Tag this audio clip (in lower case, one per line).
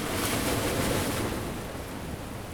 ocean
waves
water